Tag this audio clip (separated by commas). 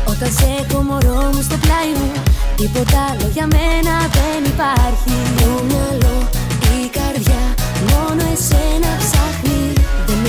Happy music, Pop music, Music